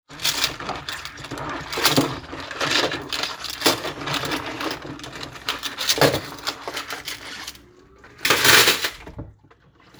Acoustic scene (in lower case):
kitchen